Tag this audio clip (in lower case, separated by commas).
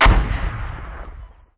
explosion